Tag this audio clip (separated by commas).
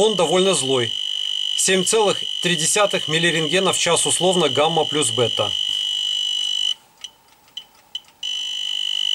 Speech